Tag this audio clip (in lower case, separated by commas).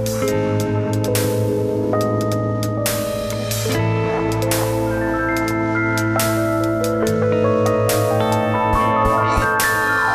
rhythm and blues, music